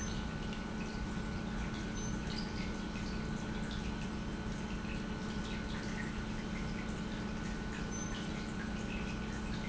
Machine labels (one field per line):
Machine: pump